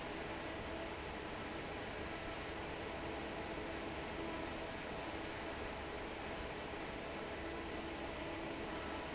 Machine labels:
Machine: fan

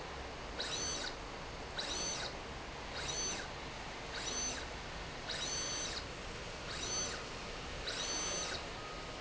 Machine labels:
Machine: slide rail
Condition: abnormal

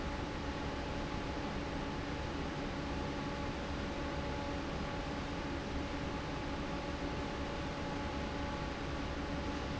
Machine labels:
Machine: fan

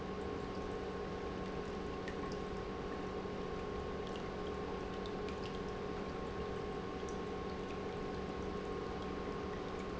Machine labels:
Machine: pump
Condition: normal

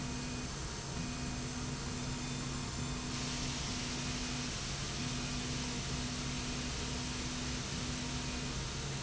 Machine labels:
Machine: slide rail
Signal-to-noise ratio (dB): -6 dB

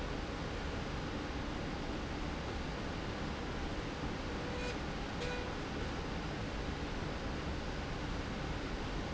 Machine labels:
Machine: slide rail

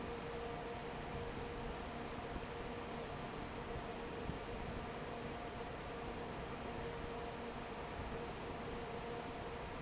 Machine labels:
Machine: fan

